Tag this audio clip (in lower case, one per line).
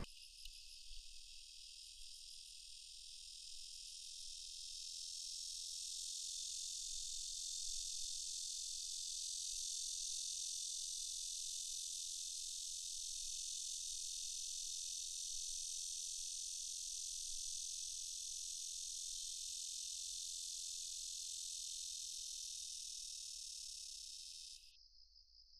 wild animals
insect
animal